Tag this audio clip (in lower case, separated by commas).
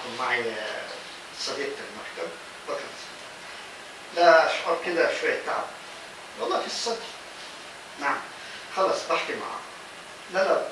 speech